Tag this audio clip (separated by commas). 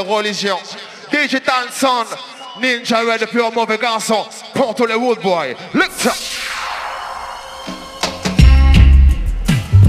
Music, Speech